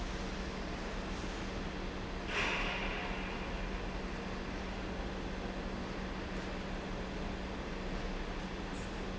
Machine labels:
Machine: pump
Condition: normal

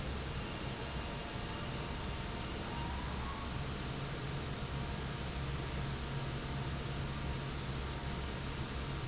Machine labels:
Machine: fan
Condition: normal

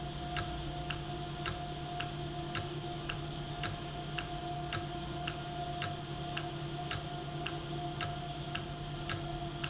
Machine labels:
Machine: valve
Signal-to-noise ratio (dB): -6 dB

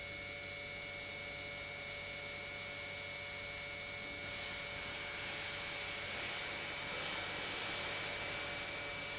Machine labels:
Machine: pump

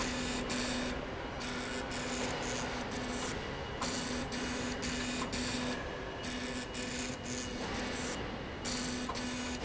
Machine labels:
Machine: slide rail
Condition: abnormal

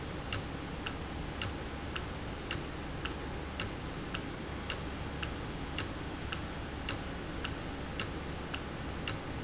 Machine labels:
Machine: valve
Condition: normal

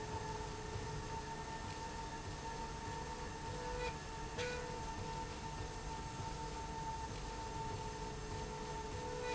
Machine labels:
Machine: slide rail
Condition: normal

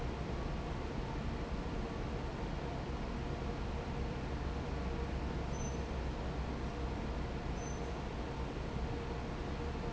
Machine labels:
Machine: fan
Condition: normal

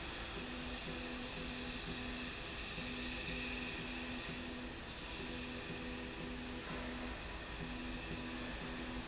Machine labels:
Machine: slide rail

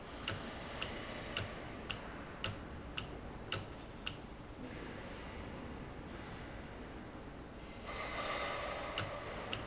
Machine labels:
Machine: valve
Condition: normal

